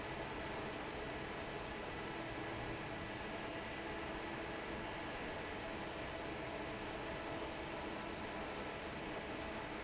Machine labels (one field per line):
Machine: fan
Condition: normal